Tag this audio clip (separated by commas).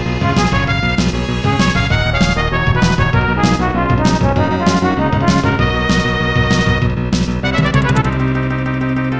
Music